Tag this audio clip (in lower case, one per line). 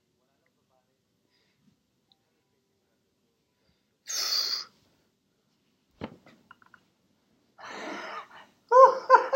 inside a small room